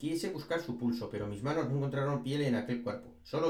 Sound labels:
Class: speech